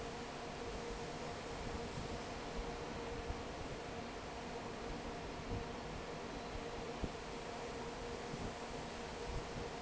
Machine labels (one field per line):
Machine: fan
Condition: normal